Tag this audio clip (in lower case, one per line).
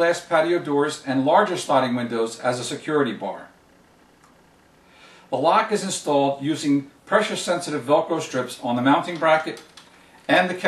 speech